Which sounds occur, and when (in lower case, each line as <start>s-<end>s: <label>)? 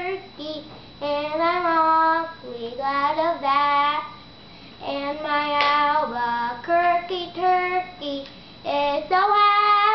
0.0s-0.6s: kid speaking
0.0s-9.9s: mechanisms
0.6s-0.8s: generic impact sounds
1.0s-4.1s: child singing
4.4s-4.7s: breathing
4.8s-8.2s: child singing
5.6s-5.7s: hands
8.2s-8.3s: generic impact sounds
8.6s-9.9s: child singing